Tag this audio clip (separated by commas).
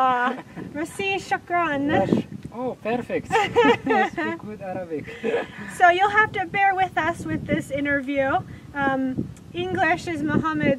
outside, rural or natural, Speech